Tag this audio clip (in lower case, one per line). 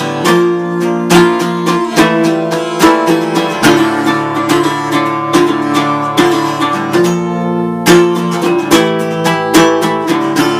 music
musical instrument
guitar
acoustic guitar
plucked string instrument